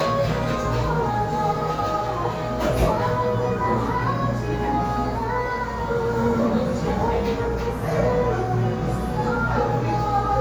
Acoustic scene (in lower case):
cafe